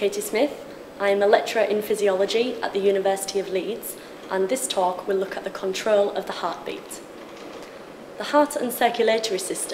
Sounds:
speech

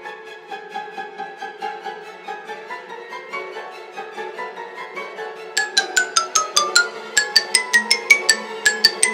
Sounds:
playing glockenspiel

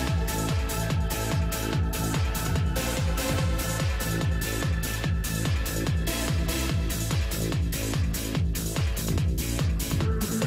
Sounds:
music

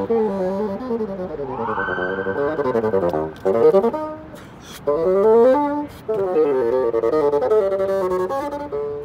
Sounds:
playing bassoon

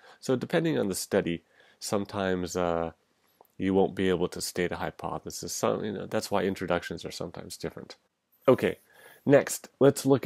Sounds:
speech

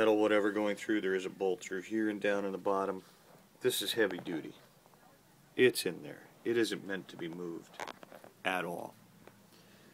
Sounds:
speech

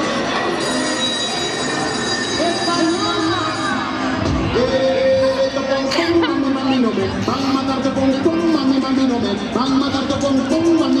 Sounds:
speech, music

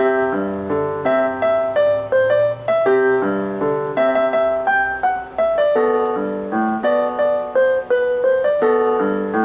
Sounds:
piano, music, keyboard (musical), musical instrument

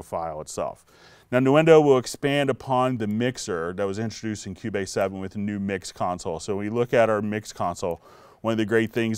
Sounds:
speech

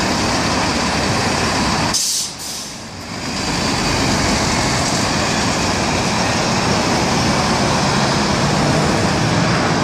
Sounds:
vehicle

